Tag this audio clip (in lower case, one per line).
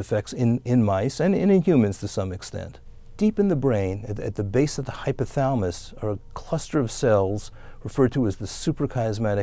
speech